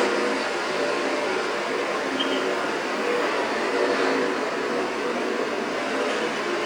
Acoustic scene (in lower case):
street